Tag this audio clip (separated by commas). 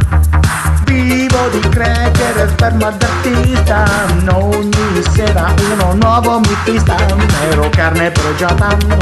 Music